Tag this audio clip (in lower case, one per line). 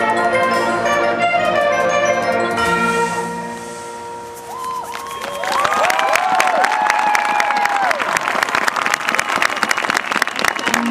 cheering
crowd